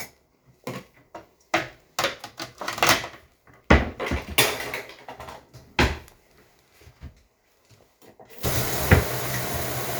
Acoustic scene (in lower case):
kitchen